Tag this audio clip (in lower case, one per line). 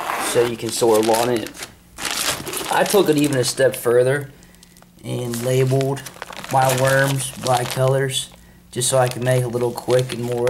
speech